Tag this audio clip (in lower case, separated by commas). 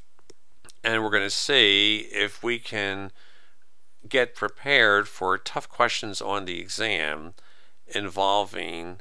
speech